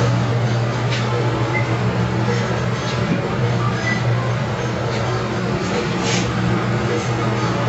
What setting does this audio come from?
elevator